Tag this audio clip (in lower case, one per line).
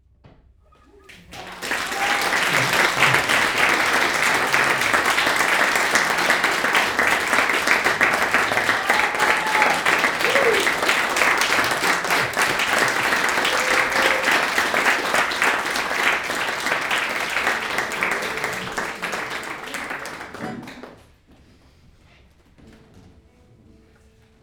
human group actions
applause